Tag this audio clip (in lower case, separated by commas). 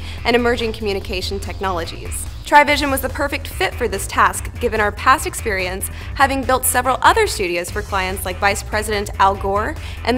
music, speech